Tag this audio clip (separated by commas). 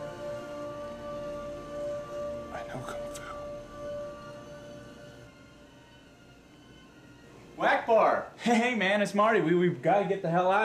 Music, Speech